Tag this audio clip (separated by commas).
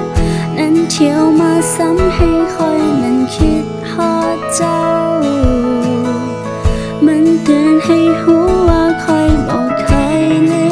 Music